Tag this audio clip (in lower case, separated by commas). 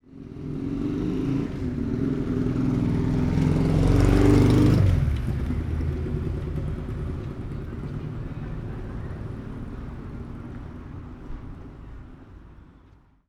car passing by, vehicle, car, motor vehicle (road)